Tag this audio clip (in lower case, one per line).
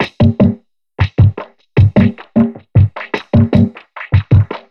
music
percussion
musical instrument